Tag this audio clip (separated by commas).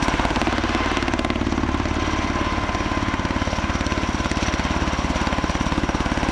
Aircraft, Vehicle